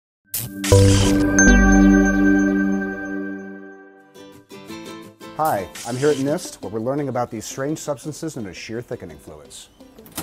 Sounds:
Speech, Music

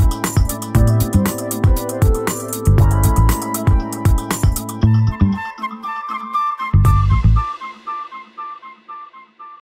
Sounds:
Music

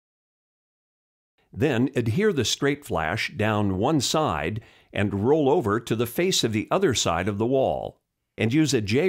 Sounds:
Speech

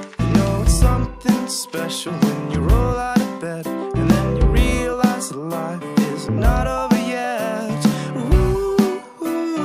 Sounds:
Music

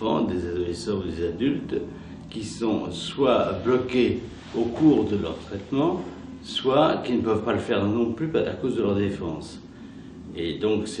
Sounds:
Speech

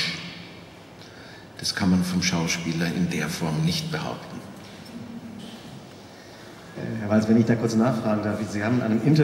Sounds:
Speech

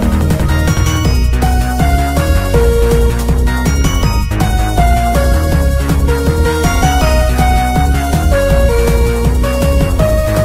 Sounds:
Soundtrack music, Jazz, Music

